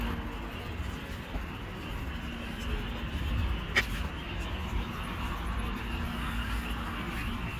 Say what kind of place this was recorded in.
park